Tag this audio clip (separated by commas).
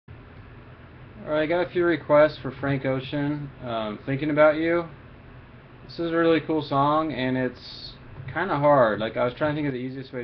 Speech